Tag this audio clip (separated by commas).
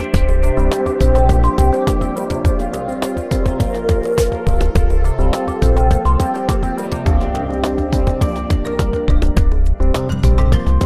Music